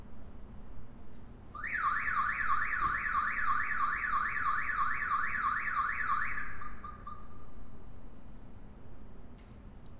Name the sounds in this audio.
car alarm